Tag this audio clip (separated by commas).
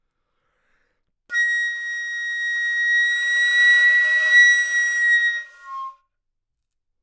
Music, Wind instrument, Musical instrument